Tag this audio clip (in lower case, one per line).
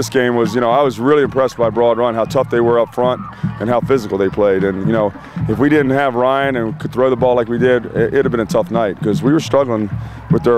speech
music